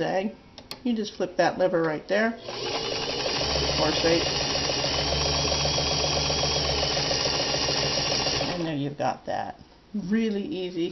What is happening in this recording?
An older woman's speech, followed by a sewing machine operating